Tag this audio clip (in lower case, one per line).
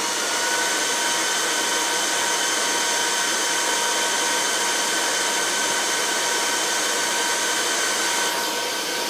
vacuum cleaner